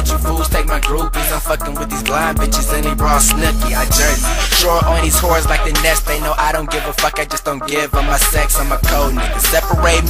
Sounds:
Music

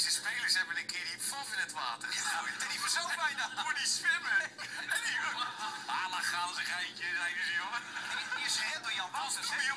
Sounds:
Speech

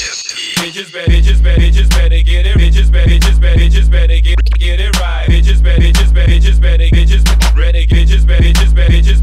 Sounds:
Music

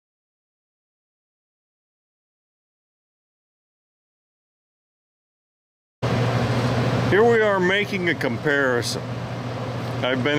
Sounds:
Mechanical fan

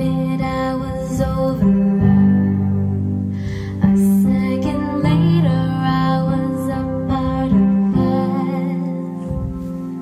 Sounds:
Music

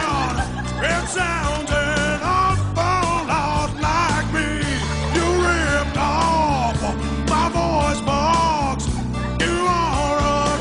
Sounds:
Music

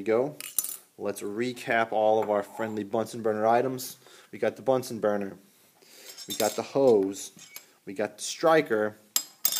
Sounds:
Cutlery

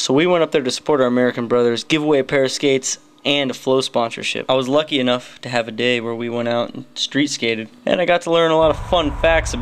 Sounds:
Speech

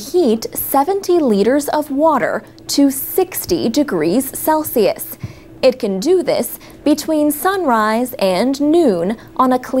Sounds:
Speech

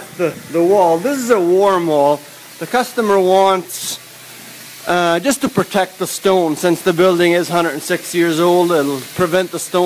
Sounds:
Spray, Speech

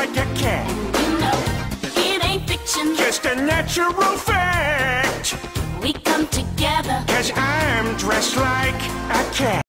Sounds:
Music

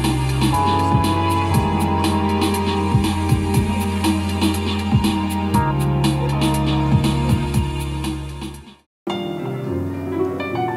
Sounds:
Tender music, Music

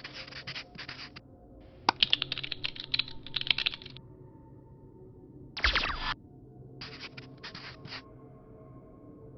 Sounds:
Sound effect

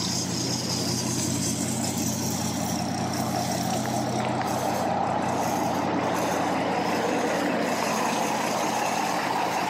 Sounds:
Car, Vehicle

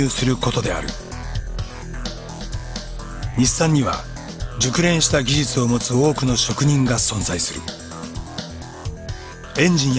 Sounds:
Music, Speech

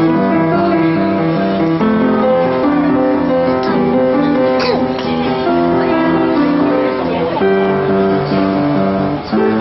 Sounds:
Music, Wedding music

